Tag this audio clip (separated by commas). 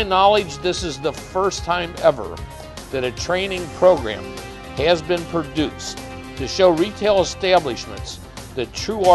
Music, Speech